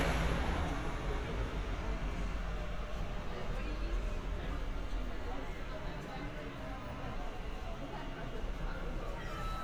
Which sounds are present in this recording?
person or small group talking